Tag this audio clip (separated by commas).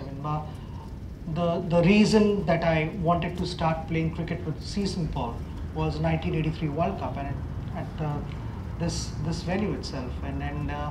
Speech